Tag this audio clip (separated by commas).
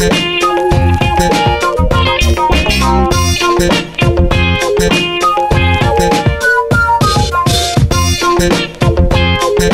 Electronica, Music